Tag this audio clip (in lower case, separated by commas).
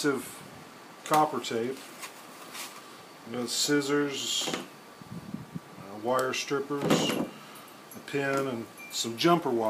speech